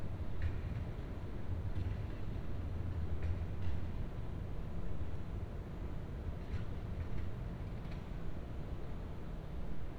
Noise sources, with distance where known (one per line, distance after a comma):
non-machinery impact, far